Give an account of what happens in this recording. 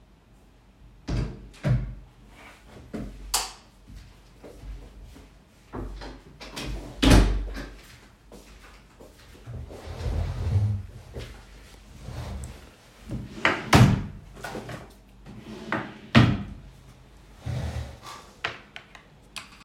Opened the door, turned on the light switch, closed the door, walked in, pulled the chair then sat on it, opened the drawer and grabbed something then closed it